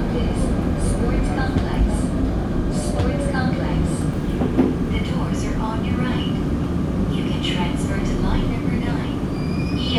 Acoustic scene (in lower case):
subway train